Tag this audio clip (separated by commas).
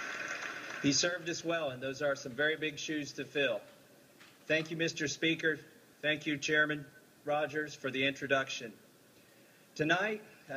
Speech, Narration, Male speech